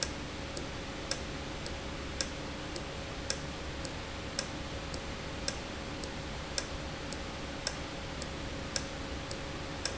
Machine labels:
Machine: valve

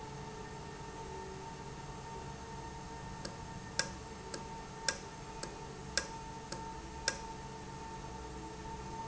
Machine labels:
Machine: valve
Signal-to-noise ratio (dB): 0 dB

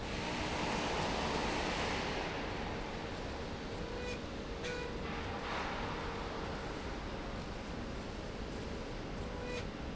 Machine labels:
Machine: slide rail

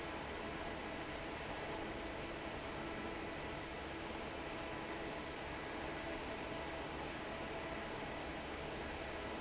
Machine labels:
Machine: fan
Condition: normal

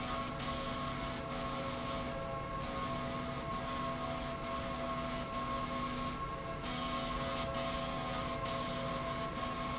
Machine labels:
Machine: slide rail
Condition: abnormal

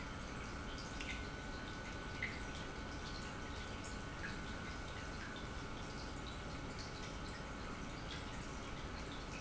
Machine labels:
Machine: pump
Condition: normal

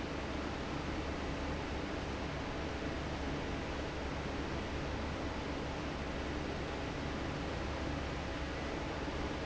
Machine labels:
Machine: fan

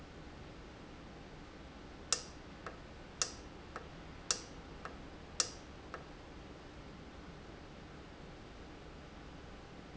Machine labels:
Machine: valve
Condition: normal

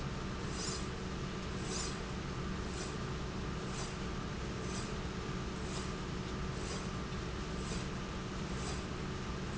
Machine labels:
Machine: slide rail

